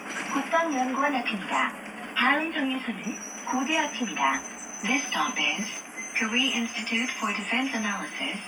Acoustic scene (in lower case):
bus